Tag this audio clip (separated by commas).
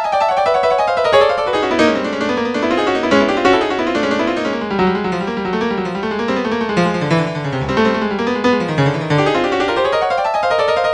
Music